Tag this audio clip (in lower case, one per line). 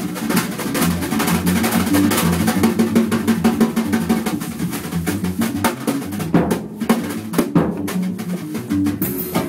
rimshot
snare drum
drum roll
bass drum
drum
percussion
drum kit